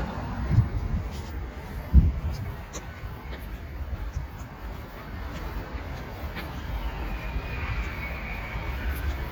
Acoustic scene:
street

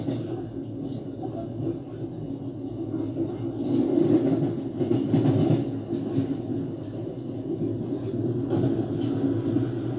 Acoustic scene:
subway train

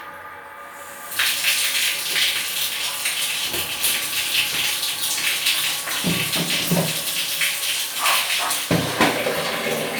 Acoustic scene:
restroom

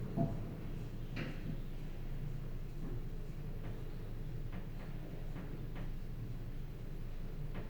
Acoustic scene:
elevator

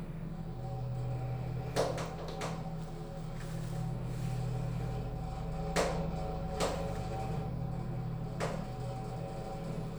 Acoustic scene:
elevator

